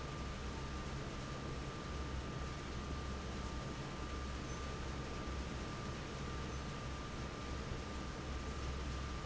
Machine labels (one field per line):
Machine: fan